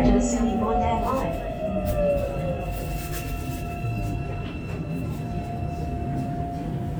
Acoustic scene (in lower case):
subway train